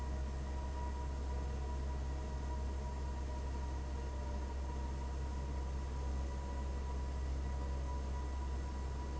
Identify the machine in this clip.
fan